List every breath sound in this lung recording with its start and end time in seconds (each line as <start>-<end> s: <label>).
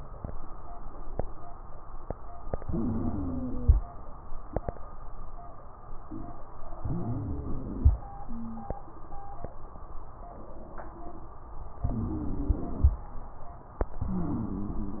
2.63-3.78 s: inhalation
2.63-3.78 s: wheeze
6.80-7.96 s: inhalation
6.80-7.96 s: wheeze
11.87-12.74 s: wheeze
11.87-13.02 s: inhalation
14.06-15.00 s: inhalation
14.06-15.00 s: wheeze